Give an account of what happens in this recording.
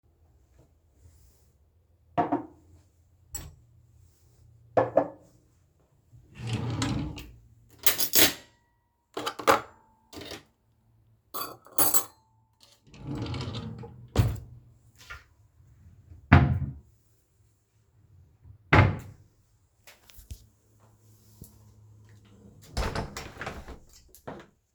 I sat the glass in the drawer, same with a mug. Opened another drawer and put forks inside. Than closed the drawers and closed the window.